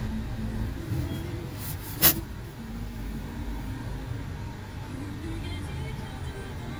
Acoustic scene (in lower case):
car